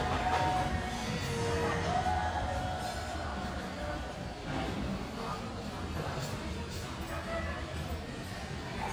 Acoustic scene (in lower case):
restaurant